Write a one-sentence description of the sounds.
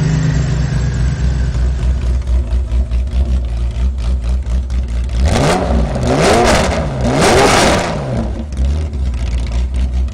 Engine running and then accelerating multiple times